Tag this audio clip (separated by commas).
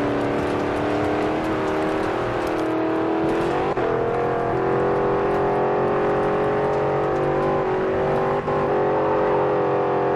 Car